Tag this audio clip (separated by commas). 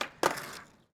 Vehicle, Skateboard